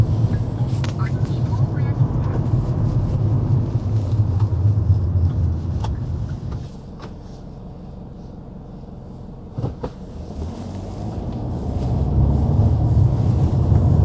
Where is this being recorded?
in a car